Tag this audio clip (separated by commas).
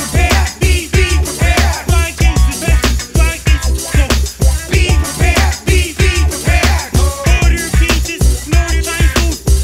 Music